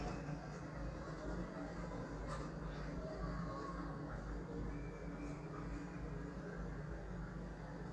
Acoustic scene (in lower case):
residential area